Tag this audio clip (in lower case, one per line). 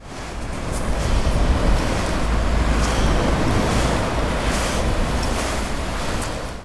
water
ocean
walk
wind
surf